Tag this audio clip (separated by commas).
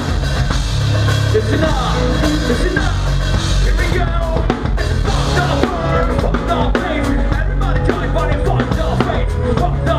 Drum kit, Music, Musical instrument, Drum